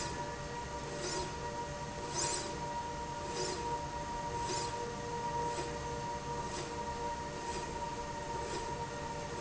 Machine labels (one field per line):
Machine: slide rail